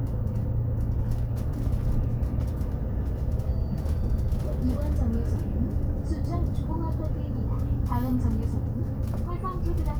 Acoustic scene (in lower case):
bus